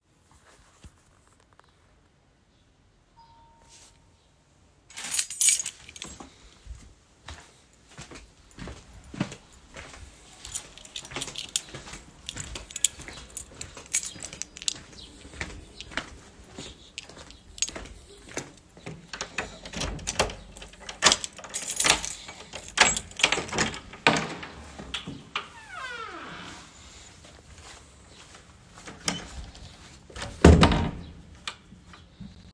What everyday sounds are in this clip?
bell ringing, keys, footsteps, door